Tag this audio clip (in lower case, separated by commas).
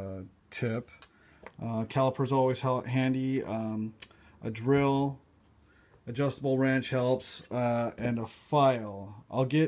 speech